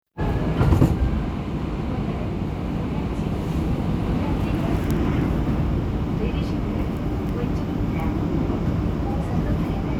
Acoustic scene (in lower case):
subway train